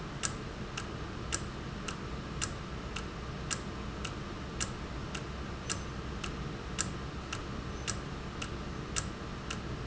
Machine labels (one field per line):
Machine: valve